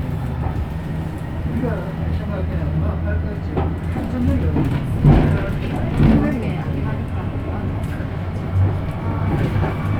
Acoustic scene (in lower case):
bus